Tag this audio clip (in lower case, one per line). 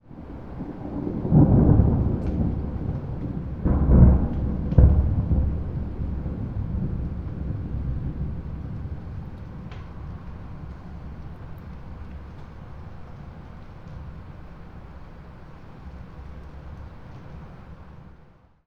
thunderstorm
thunder